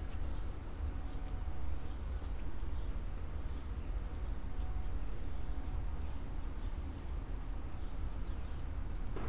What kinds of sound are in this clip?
background noise